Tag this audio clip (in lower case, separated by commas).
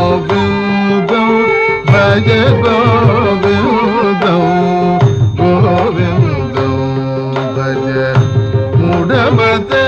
music